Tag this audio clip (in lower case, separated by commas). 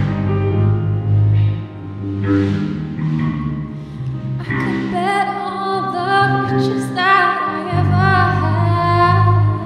music